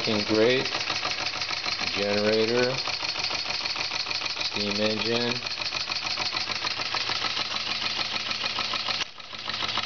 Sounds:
engine, speech

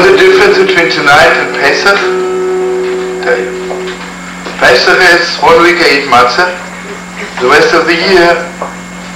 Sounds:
speech, music

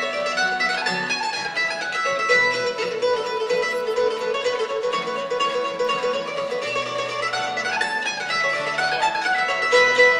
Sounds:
playing mandolin

